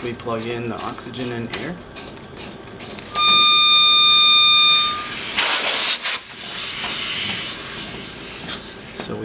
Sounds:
steam

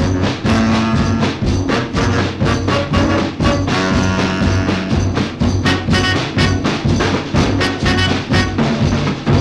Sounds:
music

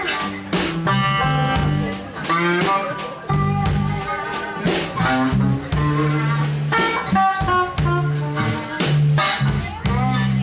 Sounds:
music, speech

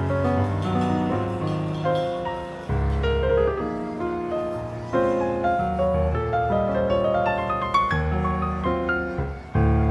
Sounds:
music

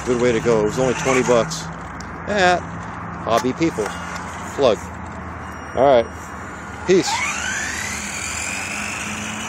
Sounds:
speech, vehicle, outside, urban or man-made

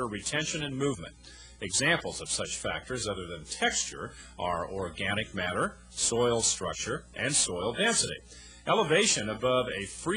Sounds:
speech

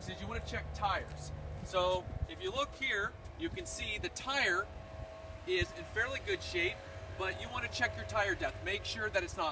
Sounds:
speech

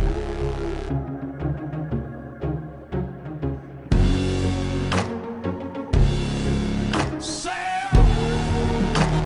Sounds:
music

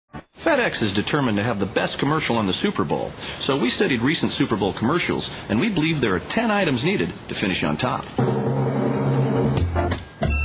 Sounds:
speech

